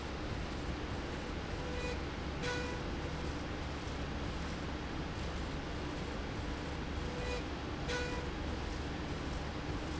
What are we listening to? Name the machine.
slide rail